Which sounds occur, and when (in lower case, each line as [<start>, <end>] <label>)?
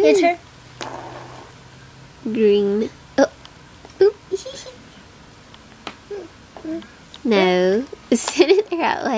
[0.00, 0.39] woman speaking
[0.00, 0.39] human sounds
[0.00, 9.15] mechanisms
[0.77, 1.50] surface contact
[2.22, 2.87] woman speaking
[3.16, 3.29] woman speaking
[3.38, 3.47] tick
[3.78, 3.87] tick
[3.96, 4.16] woman speaking
[4.29, 4.74] laughter
[5.48, 5.59] tick
[5.84, 5.94] tick
[6.08, 6.27] human sounds
[6.53, 6.63] tick
[6.64, 6.96] human sounds
[6.77, 6.85] tick
[7.11, 7.20] tick
[7.21, 7.84] woman speaking
[7.68, 7.77] tick
[8.08, 8.69] laughter
[8.08, 9.15] woman speaking
[8.09, 9.08] generic impact sounds